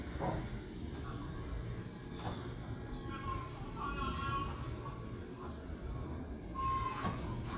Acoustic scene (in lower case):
elevator